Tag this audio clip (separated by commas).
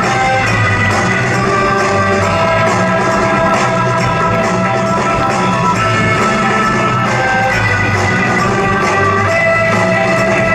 Music